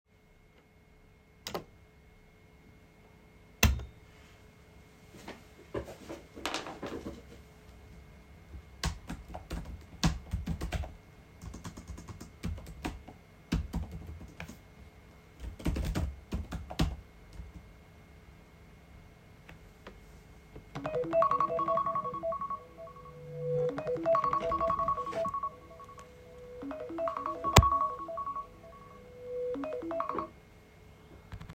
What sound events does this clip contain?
light switch, keyboard typing, phone ringing